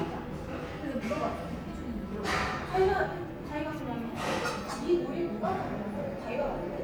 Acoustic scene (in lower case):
restaurant